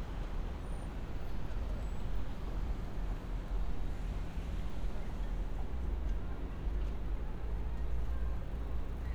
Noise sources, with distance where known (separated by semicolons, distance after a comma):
person or small group talking, far